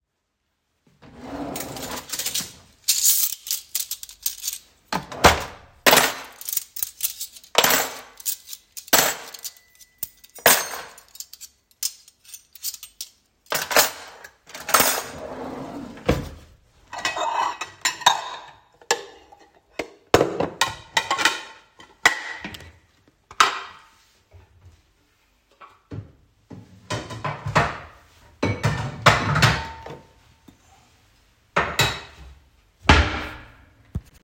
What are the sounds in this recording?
wardrobe or drawer, cutlery and dishes